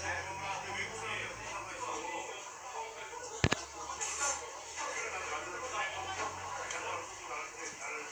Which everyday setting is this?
crowded indoor space